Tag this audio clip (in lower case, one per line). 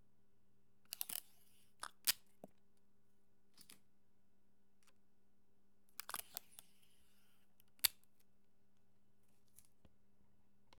duct tape
domestic sounds
tearing